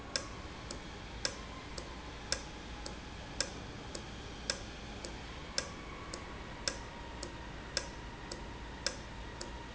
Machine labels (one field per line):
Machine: valve